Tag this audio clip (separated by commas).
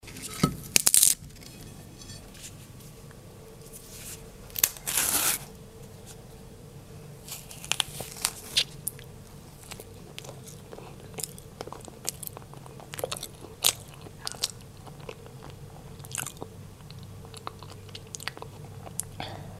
Chewing